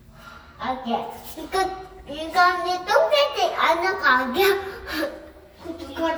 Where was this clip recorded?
in an elevator